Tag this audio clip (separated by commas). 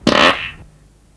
Fart